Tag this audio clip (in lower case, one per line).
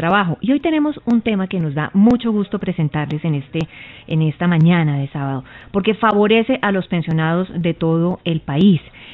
speech